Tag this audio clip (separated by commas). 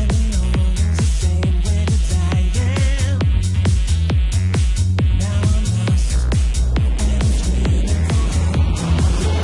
Trance music, Techno